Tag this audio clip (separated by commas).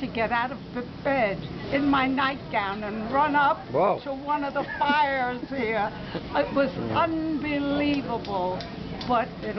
Speech